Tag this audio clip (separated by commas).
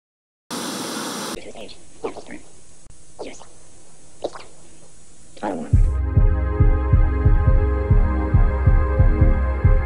Speech, Music, White noise